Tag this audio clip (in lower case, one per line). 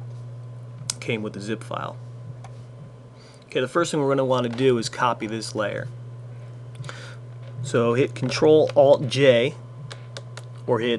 speech